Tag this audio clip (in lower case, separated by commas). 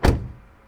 car, domestic sounds, slam, door, motor vehicle (road), vehicle